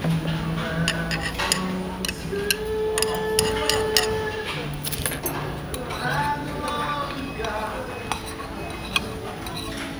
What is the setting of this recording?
restaurant